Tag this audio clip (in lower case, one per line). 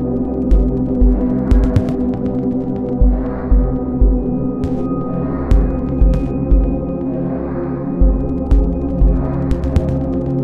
music
electronic music
ambient music